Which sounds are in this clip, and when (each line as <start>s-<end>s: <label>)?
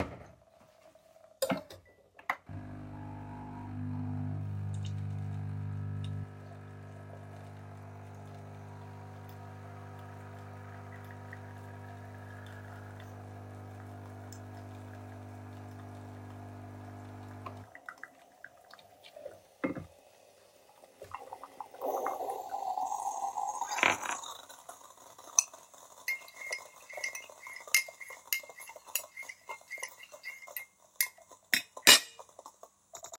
0.8s-2.5s: cutlery and dishes
2.4s-21.8s: coffee machine
19.2s-20.4s: cutlery and dishes
24.9s-32.9s: cutlery and dishes